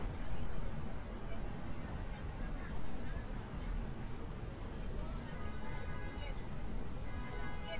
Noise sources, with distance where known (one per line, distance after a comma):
car horn, far
person or small group talking, far